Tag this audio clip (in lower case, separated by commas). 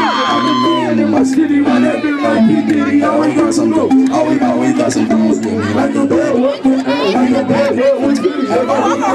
speech, whoop, music